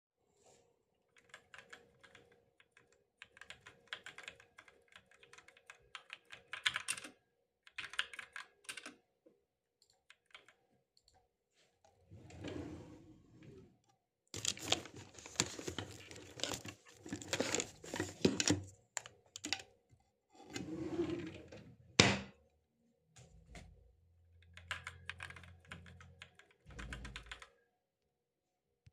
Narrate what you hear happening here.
I typed on the keyboard and clicked with the mouse while I worked on the computer, then I opened a drawer searched for my headphones and took them out closed the drawer then I continued typing.